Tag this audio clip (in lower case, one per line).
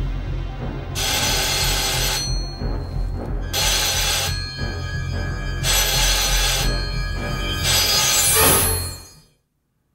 music